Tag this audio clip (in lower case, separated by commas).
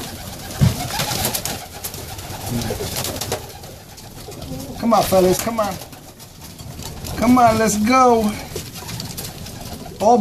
speech, dove, bird, inside a small room